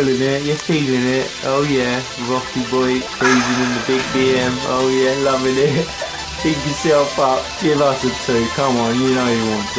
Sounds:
Music, Speech

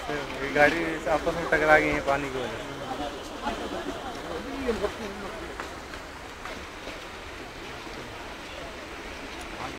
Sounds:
Speech

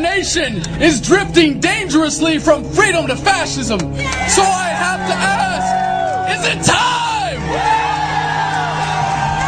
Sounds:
Speech, man speaking, Music

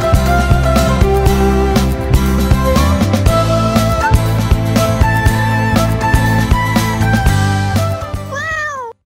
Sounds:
Music, Meow

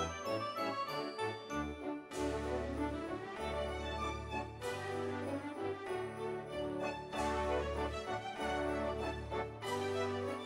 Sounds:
Music

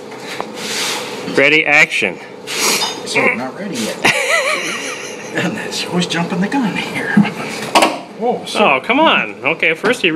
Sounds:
Speech, Vehicle

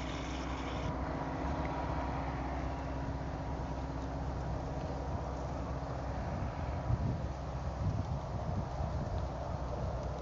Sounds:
Bird, Duck

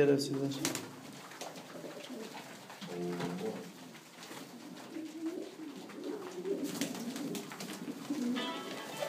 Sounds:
Speech, inside a large room or hall, dove, Bird, Music

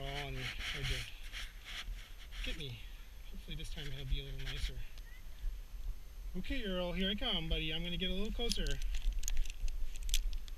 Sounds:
Speech, pets

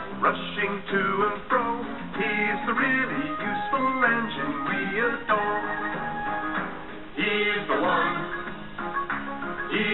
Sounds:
Music

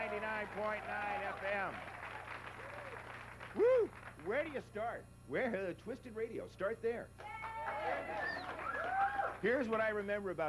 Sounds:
Speech

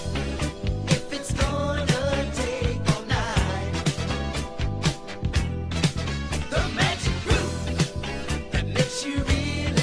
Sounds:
Pop music, Music

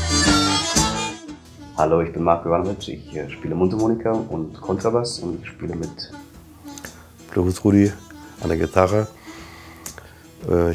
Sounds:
Guitar, Plucked string instrument, Blues, Speech, Musical instrument, Music

